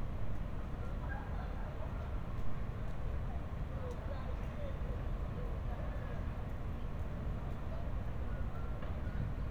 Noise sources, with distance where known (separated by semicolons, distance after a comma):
person or small group talking, far